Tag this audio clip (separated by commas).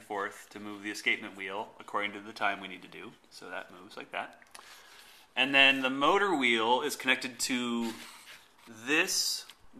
Speech